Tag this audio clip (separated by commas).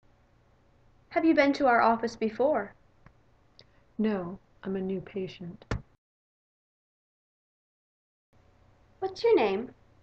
Speech, Conversation